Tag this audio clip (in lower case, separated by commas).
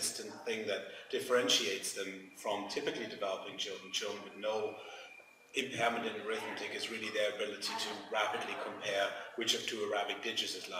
man speaking, speech